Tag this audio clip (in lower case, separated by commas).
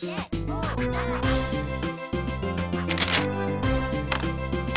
music, speech